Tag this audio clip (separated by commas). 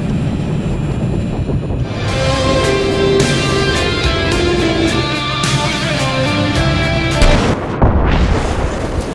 Music